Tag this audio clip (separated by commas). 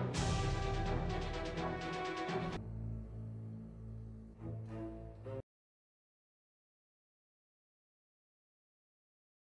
Music